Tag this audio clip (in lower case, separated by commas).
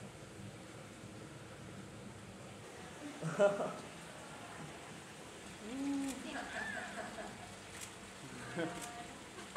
speech, animal